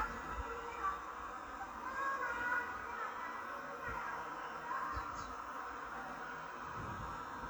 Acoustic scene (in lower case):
park